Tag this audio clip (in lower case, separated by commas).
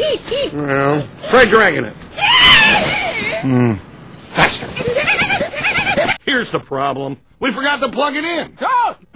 speech